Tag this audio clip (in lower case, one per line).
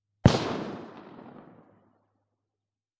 explosion
gunshot